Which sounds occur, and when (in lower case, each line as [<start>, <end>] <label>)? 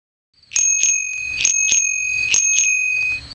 [0.34, 3.34] wind
[0.34, 0.53] chirp
[0.51, 3.24] bicycle bell
[1.19, 1.44] chirp
[2.07, 2.33] chirp
[2.94, 3.34] chirp